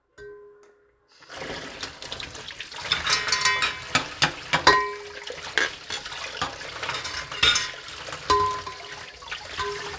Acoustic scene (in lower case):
kitchen